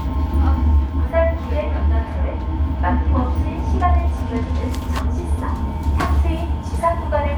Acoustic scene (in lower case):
subway train